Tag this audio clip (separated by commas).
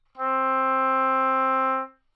Wind instrument, Musical instrument, Music